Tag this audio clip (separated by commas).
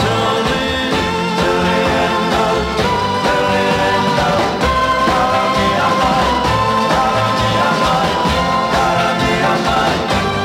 Music, Roll